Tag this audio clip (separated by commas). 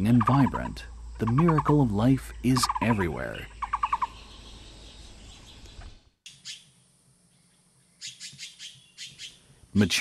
Bird vocalization, Bird, tweet